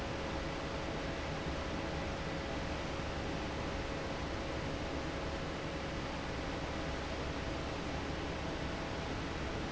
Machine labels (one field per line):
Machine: fan